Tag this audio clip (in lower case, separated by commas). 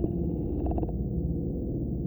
musical instrument, music, wind instrument